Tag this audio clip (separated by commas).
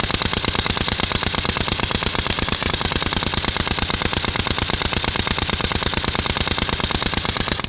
Tools